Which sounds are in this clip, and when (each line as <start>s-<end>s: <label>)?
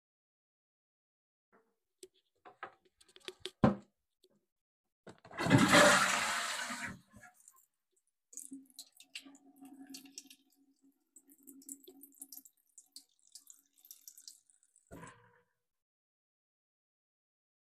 5.2s-7.1s: toilet flushing
8.3s-15.2s: running water